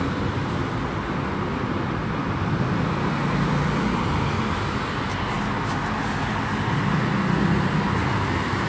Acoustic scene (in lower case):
street